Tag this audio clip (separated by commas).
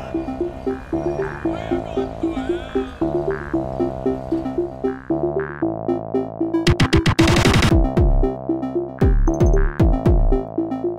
Speech, outside, urban or man-made, Music